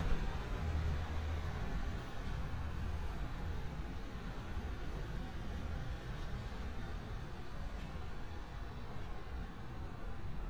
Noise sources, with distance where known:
background noise

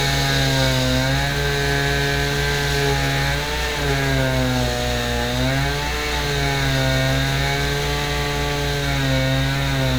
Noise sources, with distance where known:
unidentified powered saw, near

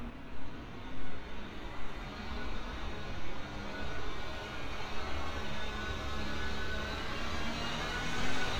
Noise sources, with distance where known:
engine of unclear size, near

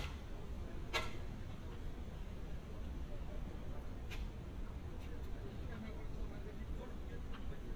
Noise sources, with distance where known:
person or small group talking, far

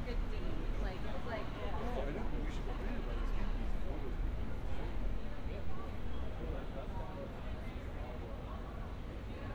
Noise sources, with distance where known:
unidentified human voice

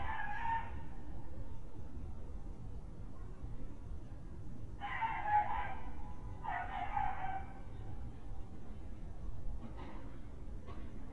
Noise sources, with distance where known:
dog barking or whining, near

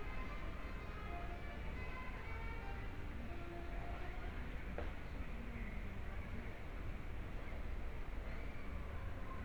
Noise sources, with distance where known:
music from a fixed source, far

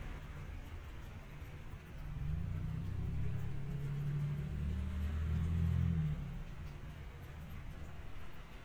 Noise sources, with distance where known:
engine of unclear size, far

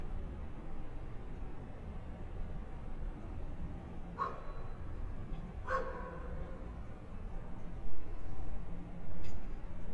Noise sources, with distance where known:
dog barking or whining, near

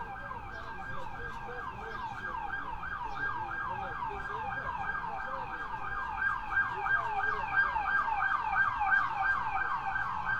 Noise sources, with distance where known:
car alarm, near

